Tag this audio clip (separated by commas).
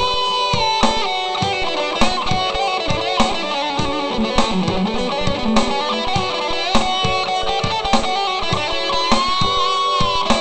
Plucked string instrument, Music, Guitar, Strum, Electric guitar, Musical instrument